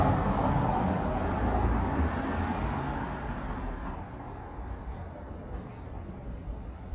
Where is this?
in a residential area